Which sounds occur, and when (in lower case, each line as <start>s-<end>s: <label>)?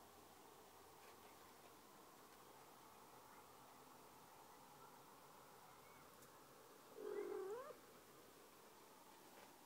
0.0s-9.6s: background noise
4.8s-5.1s: human sounds
6.9s-7.8s: caterwaul
7.0s-7.3s: chirp
7.4s-7.6s: tap
9.3s-9.5s: surface contact